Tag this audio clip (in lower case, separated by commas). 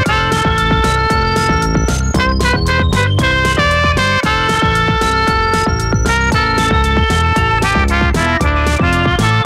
electronic music, music